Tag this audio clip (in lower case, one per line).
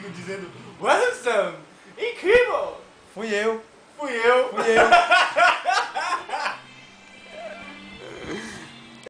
speech